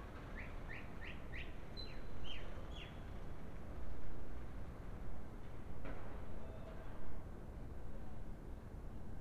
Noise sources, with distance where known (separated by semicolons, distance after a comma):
background noise